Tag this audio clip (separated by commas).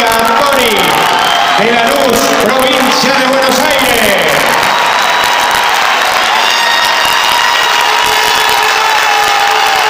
Speech, Music